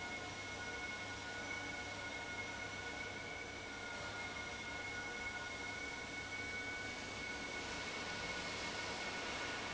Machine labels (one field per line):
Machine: fan